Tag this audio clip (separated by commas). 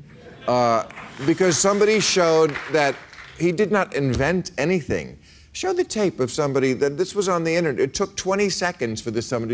Speech